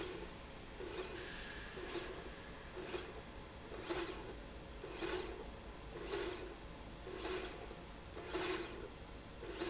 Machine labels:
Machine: slide rail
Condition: normal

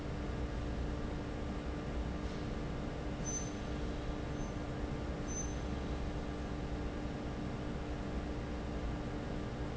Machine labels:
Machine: fan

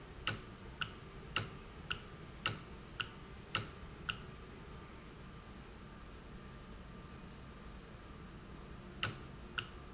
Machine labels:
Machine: valve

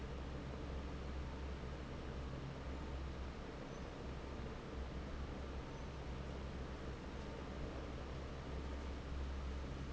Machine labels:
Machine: fan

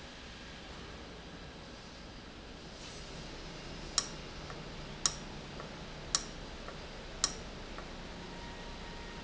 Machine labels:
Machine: valve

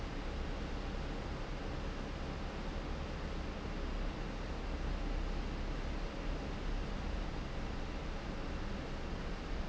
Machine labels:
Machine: fan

